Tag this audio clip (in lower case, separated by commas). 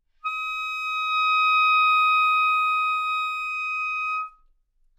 woodwind instrument, music, musical instrument